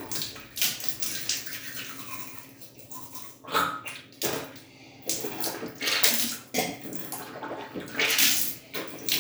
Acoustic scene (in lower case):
restroom